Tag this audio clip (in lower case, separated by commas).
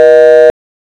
telephone, alarm